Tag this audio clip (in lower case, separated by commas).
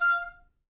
musical instrument, woodwind instrument, music